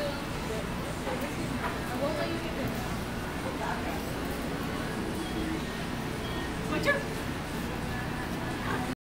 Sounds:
speech

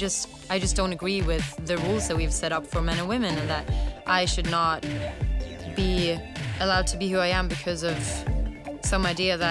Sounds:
music
speech

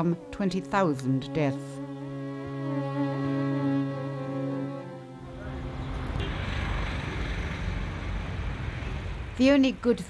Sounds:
bowed string instrument

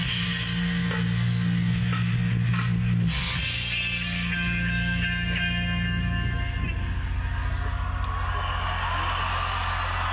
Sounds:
music
speech

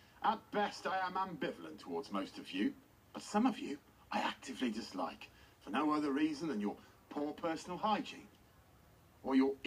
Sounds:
speech
monologue
man speaking

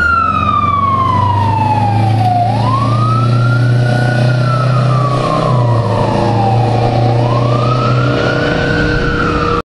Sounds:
truck
vehicle

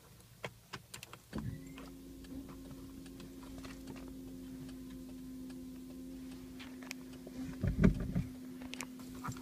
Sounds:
vehicle

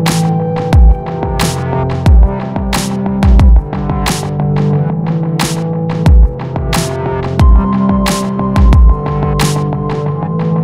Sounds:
music

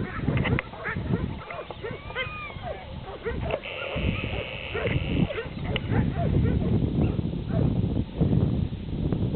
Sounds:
dog
bird
outside, rural or natural
animal
pets

